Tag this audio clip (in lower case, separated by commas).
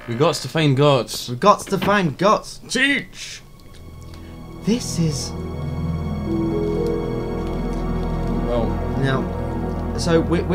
speech, music